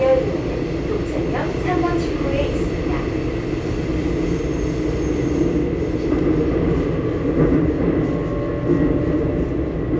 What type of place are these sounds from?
subway train